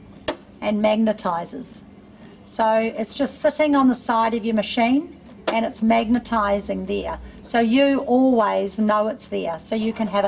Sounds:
Speech

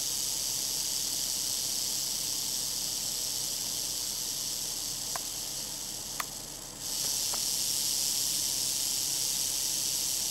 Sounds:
Snake

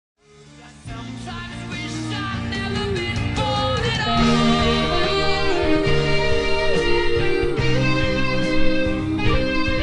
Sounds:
Musical instrument, Guitar, Music, Singing

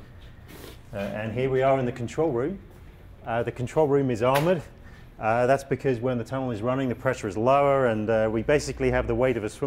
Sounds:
Speech

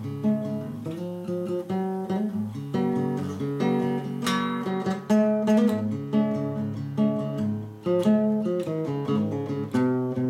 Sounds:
Guitar, Acoustic guitar, Plucked string instrument, Music, Musical instrument

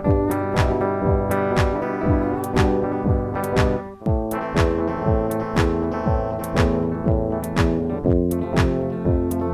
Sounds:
Techno, Music

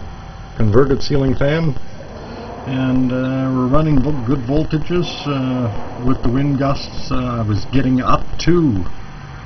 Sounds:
Speech

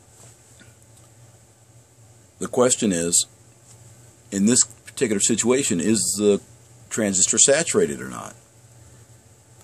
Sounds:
Speech

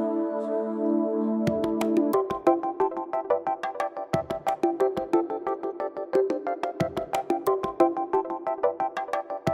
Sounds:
Electronic music, Music

